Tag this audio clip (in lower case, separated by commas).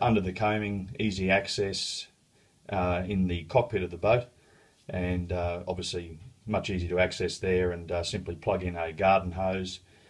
speech